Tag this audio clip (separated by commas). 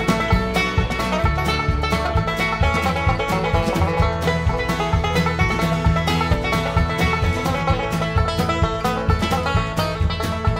Music